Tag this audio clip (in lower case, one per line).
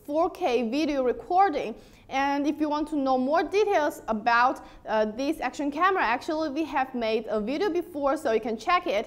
speech